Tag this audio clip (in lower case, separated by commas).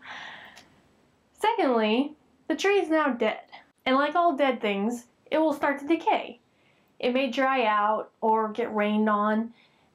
speech